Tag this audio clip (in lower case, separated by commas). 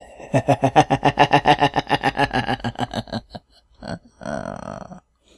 laughter, human voice